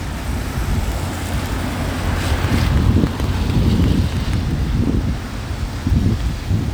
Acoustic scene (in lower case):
street